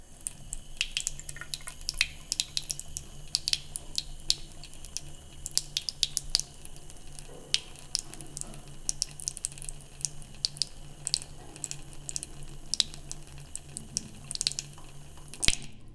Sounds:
Sink (filling or washing), Domestic sounds

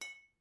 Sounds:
Glass

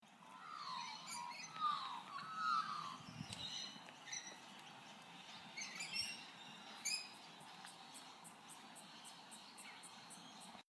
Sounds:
Chirp, Bird vocalization, Wild animals, Bird, Animal

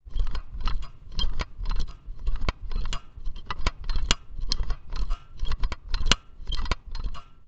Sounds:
Mechanisms

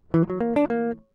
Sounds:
Music, Plucked string instrument, Guitar, Musical instrument

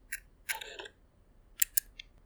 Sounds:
Mechanisms, Camera

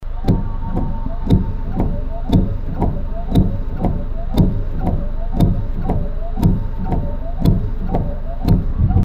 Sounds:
Motor vehicle (road), Car, Vehicle

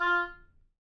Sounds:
Music, Musical instrument, woodwind instrument

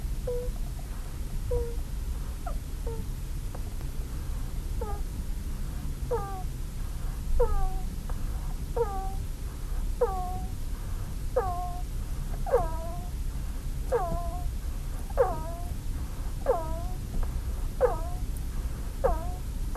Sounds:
Wild animals, Animal

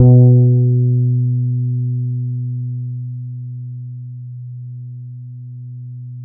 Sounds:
Guitar, Music, Plucked string instrument, Musical instrument, Bass guitar

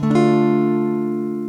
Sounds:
Guitar, Music, Plucked string instrument, Strum, Acoustic guitar, Musical instrument

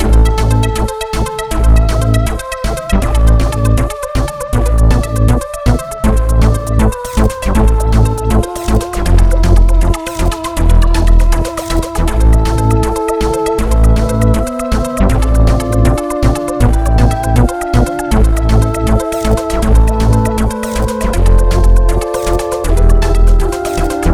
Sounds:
Musical instrument, Music

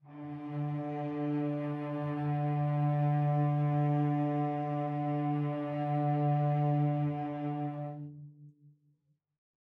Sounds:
Musical instrument, Bowed string instrument, Music

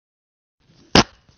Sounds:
Fart

